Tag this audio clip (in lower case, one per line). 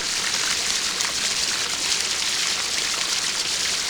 water
stream